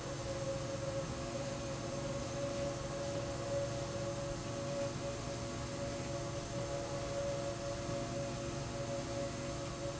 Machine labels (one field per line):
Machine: slide rail